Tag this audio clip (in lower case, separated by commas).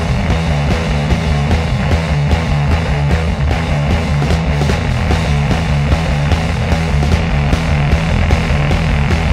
music